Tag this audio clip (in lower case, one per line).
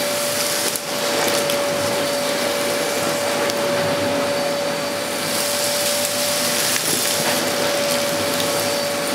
vacuum cleaner cleaning floors